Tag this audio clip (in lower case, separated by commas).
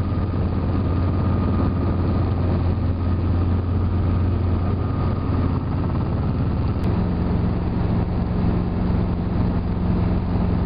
vehicle, helicopter